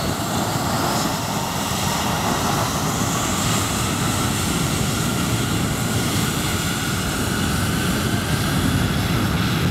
An extremely loud aircraft engine